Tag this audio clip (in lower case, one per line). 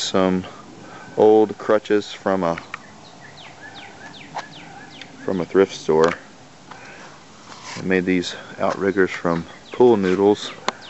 speech
bird